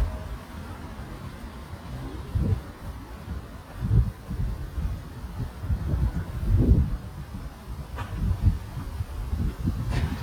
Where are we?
in a residential area